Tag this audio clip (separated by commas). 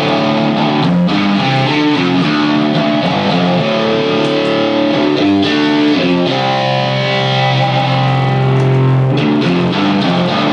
Music